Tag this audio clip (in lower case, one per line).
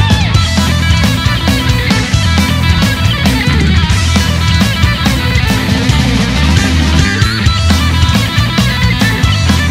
music
electric guitar
musical instrument
plucked string instrument